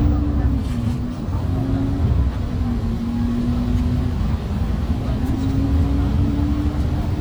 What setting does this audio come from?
bus